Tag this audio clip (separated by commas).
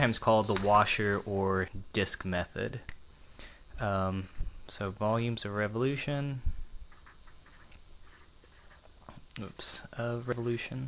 Speech